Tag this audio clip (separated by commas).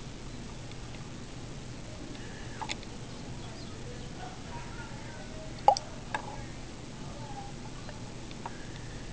Speech, inside a small room